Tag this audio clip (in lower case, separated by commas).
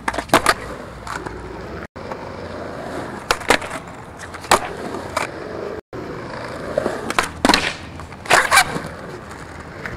skateboarding, skateboard